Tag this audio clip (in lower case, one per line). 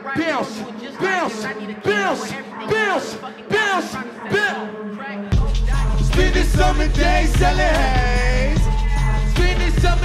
music
exciting music